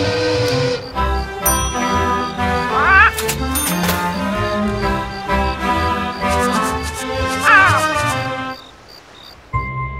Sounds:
quack, duck, music

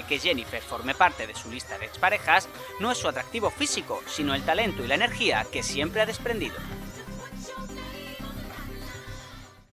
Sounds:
music, speech

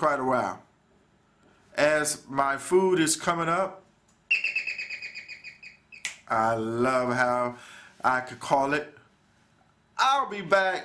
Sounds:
speech, inside a small room

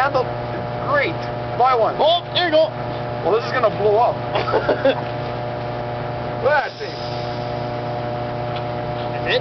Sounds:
speech

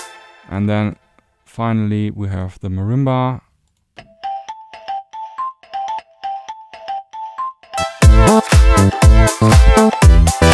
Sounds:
synthesizer, speech, music, musical instrument

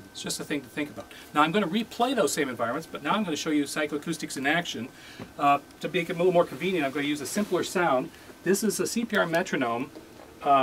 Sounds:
speech

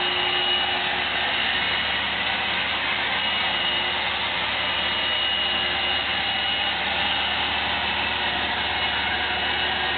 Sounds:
vacuum cleaner

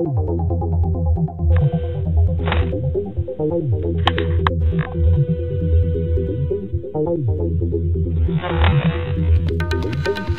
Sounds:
throbbing

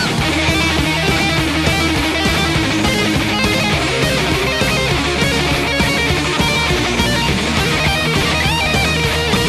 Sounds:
plucked string instrument, strum, guitar, electric guitar, musical instrument, music

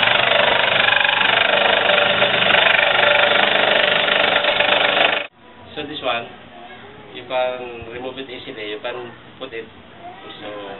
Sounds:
speech

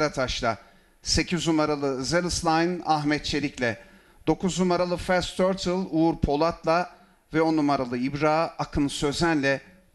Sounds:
speech

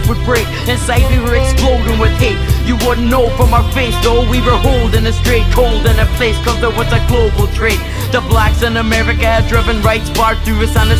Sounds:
exciting music, rhythm and blues, music

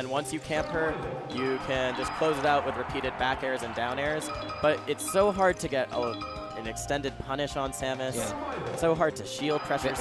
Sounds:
speech, music

